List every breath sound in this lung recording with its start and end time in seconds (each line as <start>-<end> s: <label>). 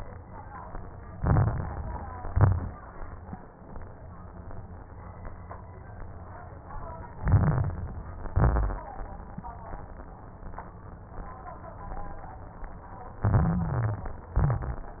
1.06-2.09 s: inhalation
1.06-2.09 s: crackles
2.17-2.81 s: exhalation
2.17-2.81 s: crackles
7.18-8.21 s: inhalation
7.18-8.21 s: crackles
8.27-8.91 s: exhalation
8.27-8.91 s: crackles
13.22-14.14 s: stridor
13.22-14.33 s: inhalation
14.35-15.00 s: exhalation
14.35-15.00 s: crackles